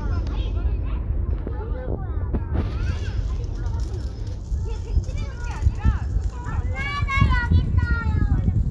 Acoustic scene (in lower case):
residential area